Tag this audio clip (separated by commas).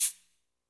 Music, Musical instrument, Rattle (instrument), Percussion